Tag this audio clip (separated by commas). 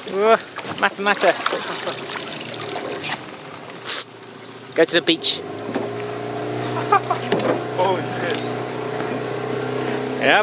Speech, Water